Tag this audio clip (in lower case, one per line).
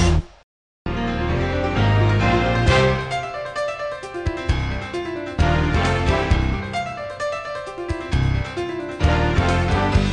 music